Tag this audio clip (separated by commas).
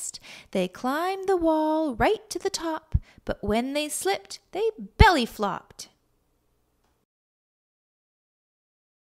Speech